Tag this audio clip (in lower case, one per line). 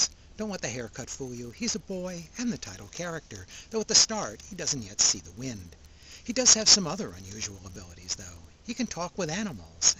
speech